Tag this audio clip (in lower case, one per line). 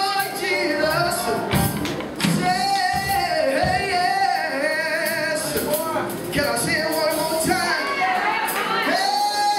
speech
music
male singing